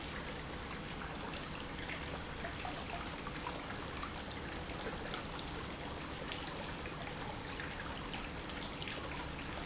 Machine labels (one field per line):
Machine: pump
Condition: normal